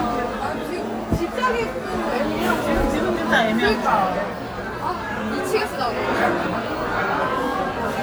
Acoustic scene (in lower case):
crowded indoor space